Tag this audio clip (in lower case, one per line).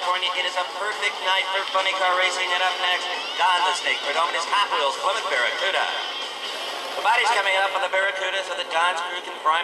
speech